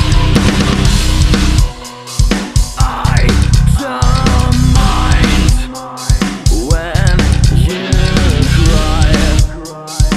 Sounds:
Music

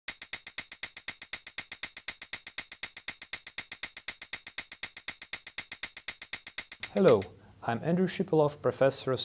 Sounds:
Speech, Music

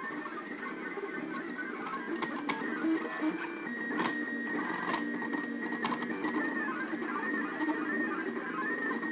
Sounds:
printer printing, Printer

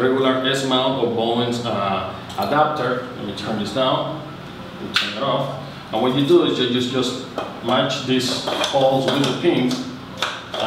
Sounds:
Music, Speech

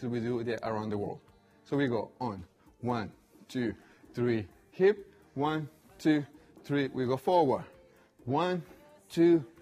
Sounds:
Speech

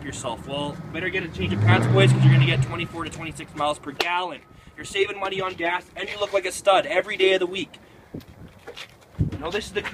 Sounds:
Motor vehicle (road), Speech, Car, Vehicle

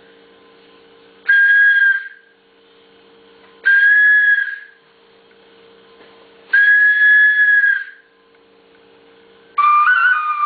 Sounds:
Music, Flute

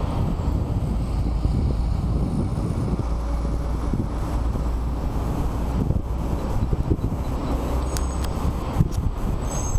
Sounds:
Vehicle

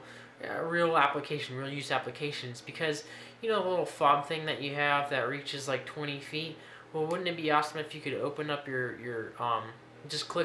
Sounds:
Speech

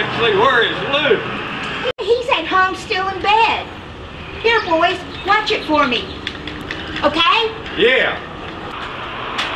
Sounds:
outside, urban or man-made, Speech, Truck, Vehicle

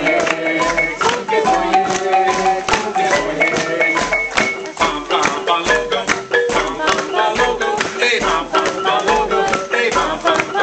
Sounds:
Music, Musical instrument, Marimba

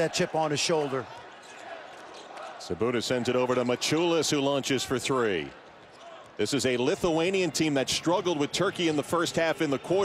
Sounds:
Speech

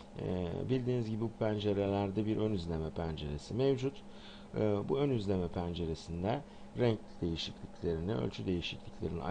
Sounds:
Speech

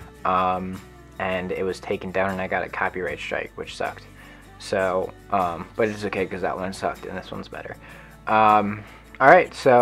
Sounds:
Music, Speech

